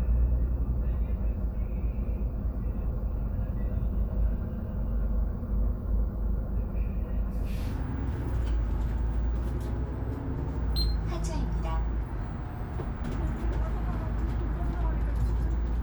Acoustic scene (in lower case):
bus